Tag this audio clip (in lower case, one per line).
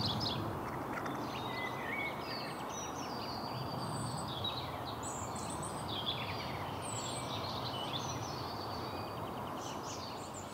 bird